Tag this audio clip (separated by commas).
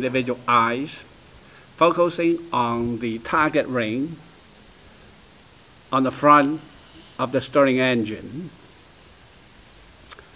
Speech